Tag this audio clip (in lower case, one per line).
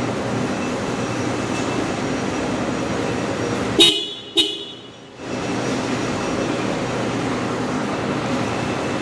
vehicle horn